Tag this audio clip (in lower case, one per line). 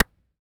clapping
hands